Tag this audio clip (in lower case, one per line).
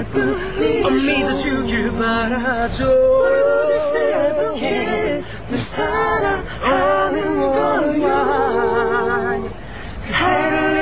vehicle
car
male singing
female singing